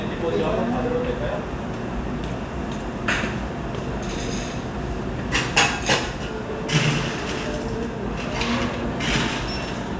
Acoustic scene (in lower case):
cafe